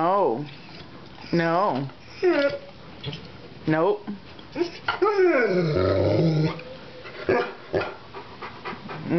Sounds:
Dog, pets, Speech, Animal

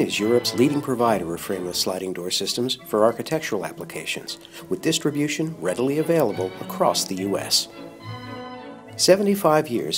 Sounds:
Speech, Music

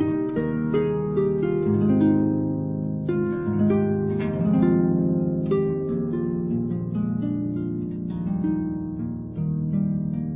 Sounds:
playing harp

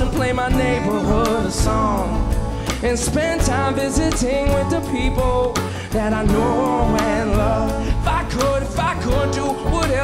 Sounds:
Music

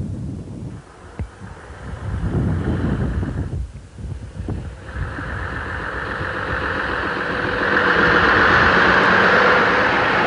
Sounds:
Vehicle

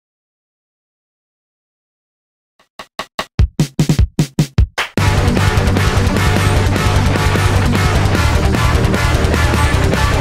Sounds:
Heavy metal, Musical instrument, Drum machine, Guitar, Rock music, Music, Plucked string instrument

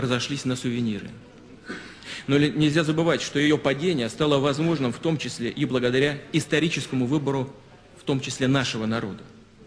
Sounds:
Male speech, Narration, Speech

